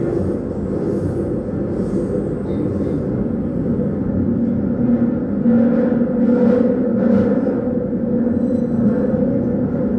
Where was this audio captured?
on a subway train